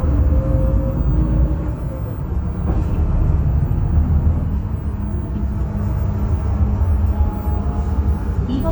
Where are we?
on a bus